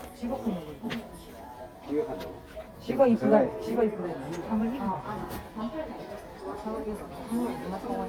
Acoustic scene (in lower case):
crowded indoor space